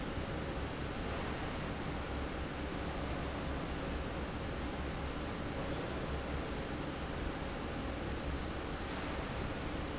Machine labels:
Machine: fan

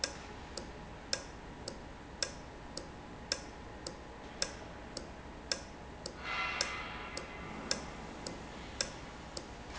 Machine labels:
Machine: valve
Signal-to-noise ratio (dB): 0 dB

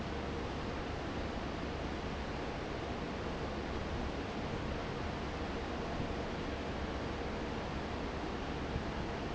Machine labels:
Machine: fan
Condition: normal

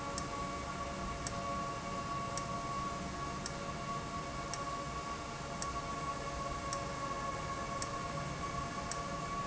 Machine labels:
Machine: valve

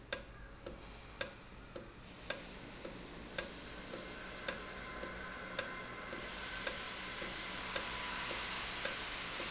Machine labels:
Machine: valve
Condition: normal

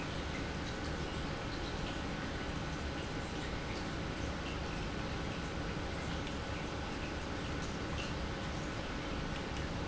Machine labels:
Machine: pump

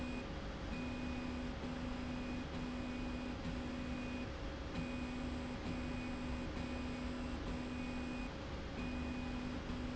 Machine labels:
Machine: slide rail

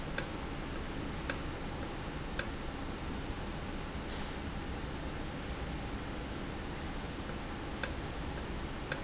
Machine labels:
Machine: valve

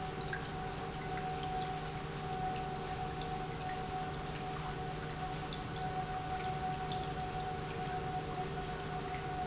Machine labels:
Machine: pump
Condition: normal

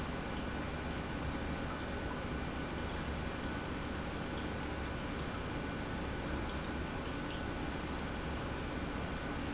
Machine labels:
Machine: pump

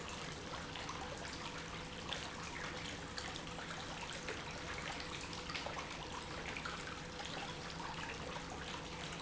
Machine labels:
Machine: pump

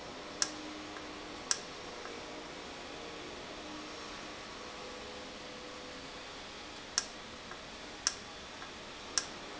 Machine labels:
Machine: valve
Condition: normal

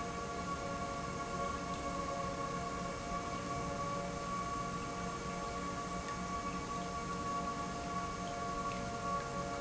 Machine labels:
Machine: pump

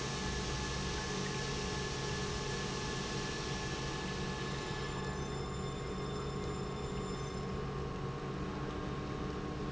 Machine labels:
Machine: pump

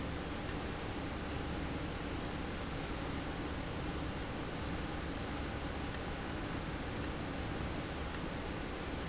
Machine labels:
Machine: valve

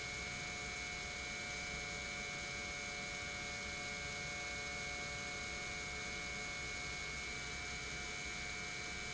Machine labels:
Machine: pump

